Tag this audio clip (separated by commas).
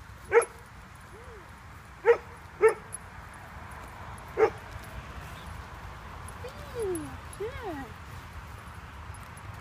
Speech